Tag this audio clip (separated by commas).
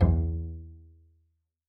Musical instrument, Bowed string instrument, Music